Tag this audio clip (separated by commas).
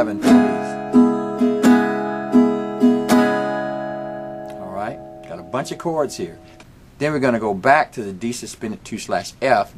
Plucked string instrument, Strum, Musical instrument, Guitar, Acoustic guitar